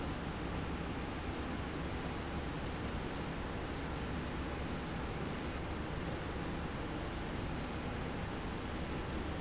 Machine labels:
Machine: slide rail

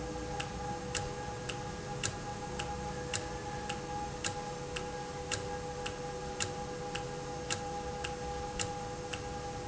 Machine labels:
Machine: valve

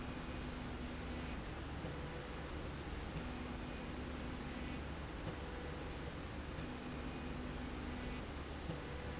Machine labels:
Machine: slide rail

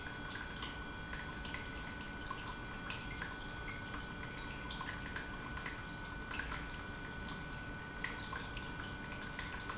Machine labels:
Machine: pump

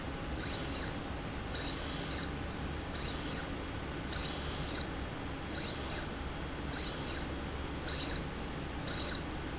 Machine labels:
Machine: slide rail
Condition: abnormal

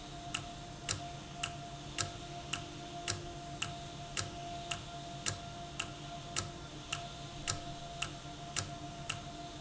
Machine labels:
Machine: valve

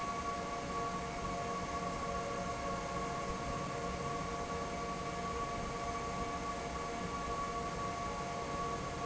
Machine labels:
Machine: fan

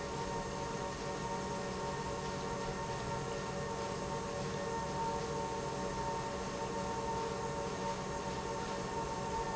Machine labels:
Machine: pump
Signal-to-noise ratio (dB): -6 dB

